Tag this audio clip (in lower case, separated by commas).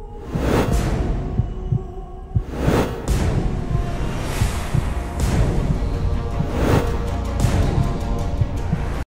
whoosh